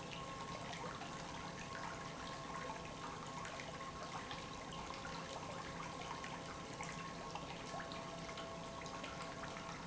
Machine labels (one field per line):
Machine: pump